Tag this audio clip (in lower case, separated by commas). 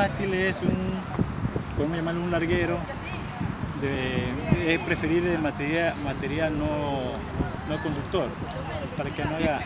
speech